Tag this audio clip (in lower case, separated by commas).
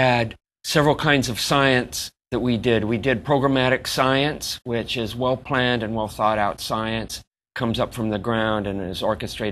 speech